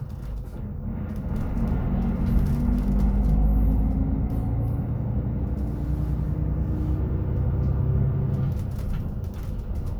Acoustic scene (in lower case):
bus